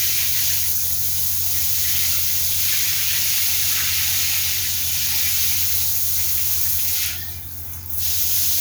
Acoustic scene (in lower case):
restroom